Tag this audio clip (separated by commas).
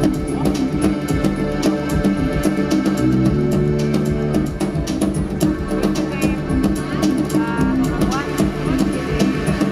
Music, Speech